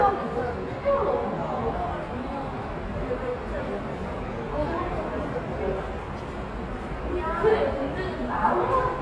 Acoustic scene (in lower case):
subway station